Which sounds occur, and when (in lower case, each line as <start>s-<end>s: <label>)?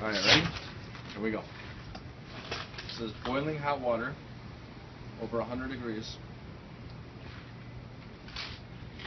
0.0s-0.5s: male speech
0.0s-0.7s: generic impact sounds
0.0s-6.2s: conversation
0.0s-9.0s: wind
0.8s-1.2s: footsteps
1.1s-1.6s: male speech
1.8s-2.0s: generic impact sounds
2.3s-2.6s: generic impact sounds
2.8s-3.0s: generic impact sounds
2.9s-4.1s: male speech
5.1s-6.1s: male speech
6.8s-7.0s: generic impact sounds
7.2s-7.7s: surface contact
7.9s-8.1s: generic impact sounds
8.3s-8.6s: footsteps